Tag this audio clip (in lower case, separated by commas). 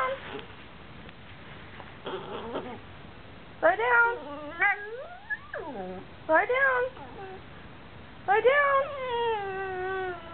animal, domestic animals, speech